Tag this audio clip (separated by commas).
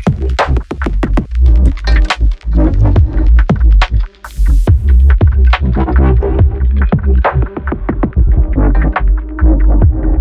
Music, Sampler